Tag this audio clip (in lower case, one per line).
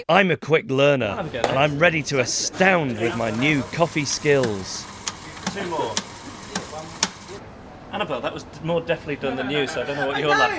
speech
inside a large room or hall